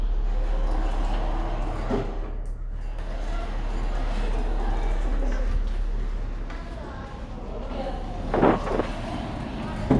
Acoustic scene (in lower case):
elevator